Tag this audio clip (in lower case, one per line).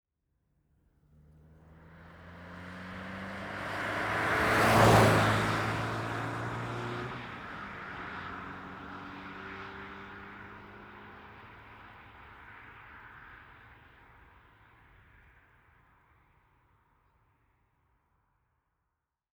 vehicle
motor vehicle (road)
car passing by
car